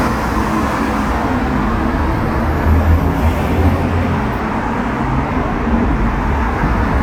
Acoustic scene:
street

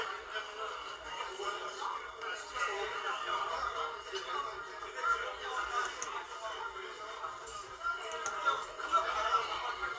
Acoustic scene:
crowded indoor space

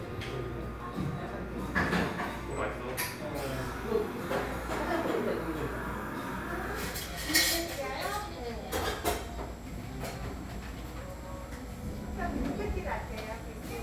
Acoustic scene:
cafe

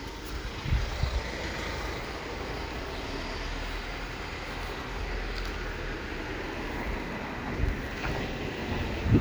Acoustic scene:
residential area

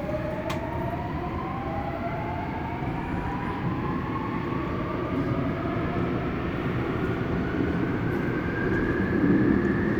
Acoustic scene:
subway train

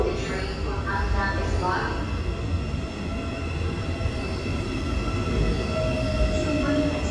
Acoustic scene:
subway station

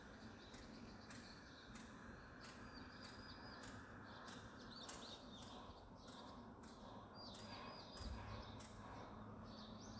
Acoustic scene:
park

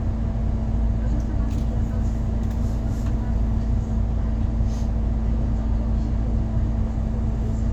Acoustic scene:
bus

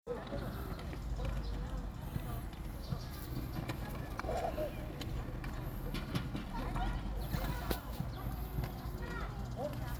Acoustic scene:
park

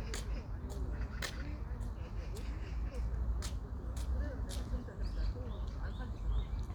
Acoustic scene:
park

